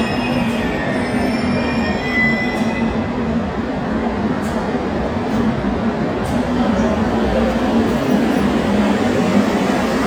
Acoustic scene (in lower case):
subway station